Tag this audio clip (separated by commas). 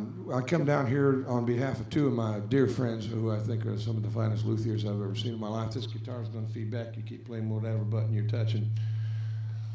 Speech